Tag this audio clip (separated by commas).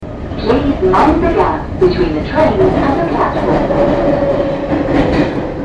Rail transport, Vehicle, underground